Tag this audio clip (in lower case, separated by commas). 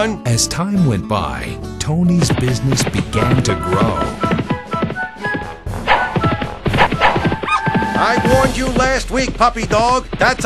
music, speech, animal